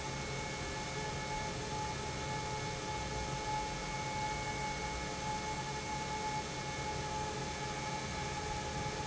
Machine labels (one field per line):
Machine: pump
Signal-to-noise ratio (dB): -6 dB